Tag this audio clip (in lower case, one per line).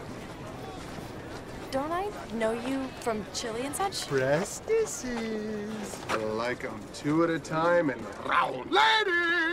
speech